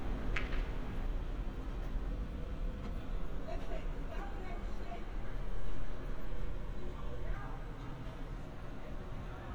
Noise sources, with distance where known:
non-machinery impact
person or small group shouting, far

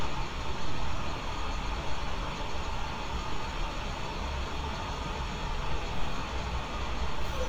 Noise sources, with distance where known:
large-sounding engine, near

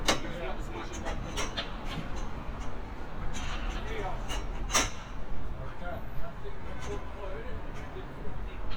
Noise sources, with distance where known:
person or small group talking

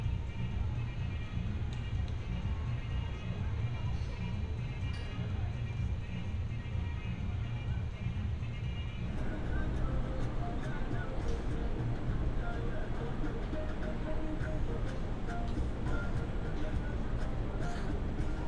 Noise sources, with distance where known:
music from a fixed source, far

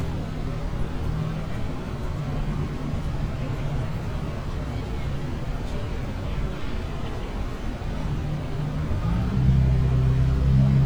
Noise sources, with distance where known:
medium-sounding engine, near
person or small group talking, far

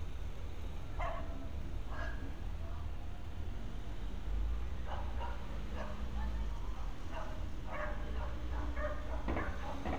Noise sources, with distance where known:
dog barking or whining, near

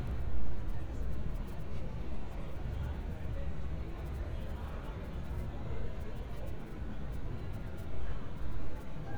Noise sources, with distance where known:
person or small group talking, far

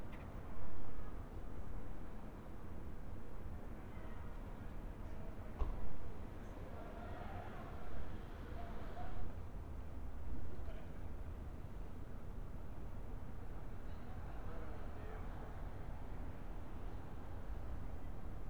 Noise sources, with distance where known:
person or small group talking

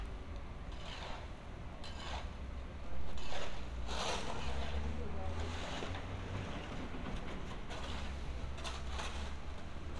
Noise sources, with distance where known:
person or small group talking

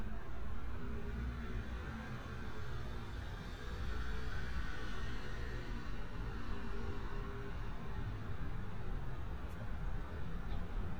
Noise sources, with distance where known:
small-sounding engine, far

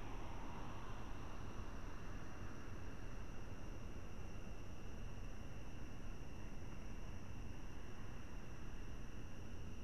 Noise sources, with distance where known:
background noise

